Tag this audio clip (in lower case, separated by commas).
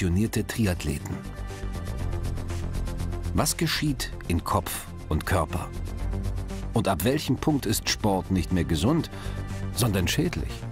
music, speech